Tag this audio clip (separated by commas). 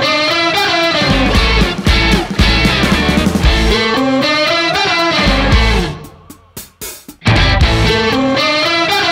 Music